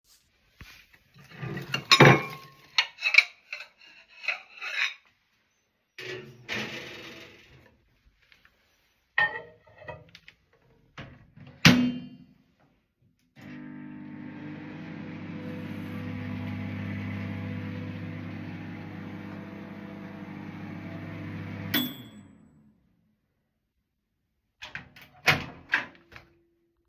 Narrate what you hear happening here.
I picked up several dishes and put one of them into the microwave. I closed the microwave door and started it, waited for it to finish and opened the microwave door.